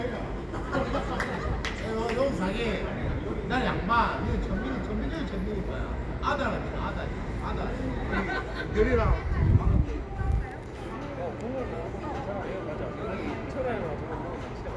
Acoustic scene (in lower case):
residential area